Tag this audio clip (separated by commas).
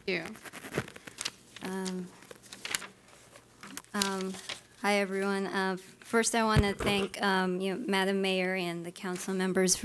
Speech, inside a small room